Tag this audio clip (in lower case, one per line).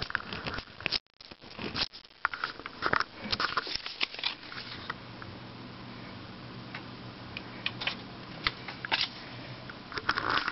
inside a small room